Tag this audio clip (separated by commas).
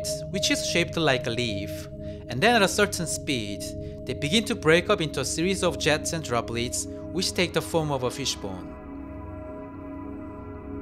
Speech, Music